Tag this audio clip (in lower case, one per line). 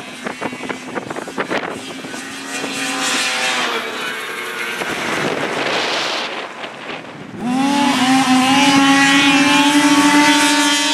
driving snowmobile